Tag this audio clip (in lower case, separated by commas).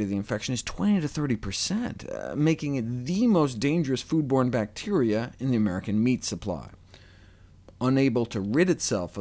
speech